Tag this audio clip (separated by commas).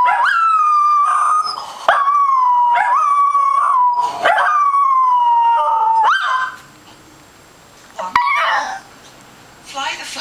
Bark, dog barking, Speech